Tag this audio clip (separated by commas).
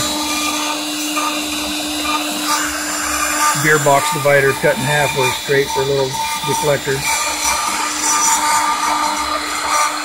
Speech